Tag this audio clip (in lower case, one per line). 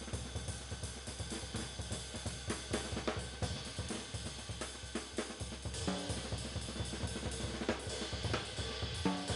music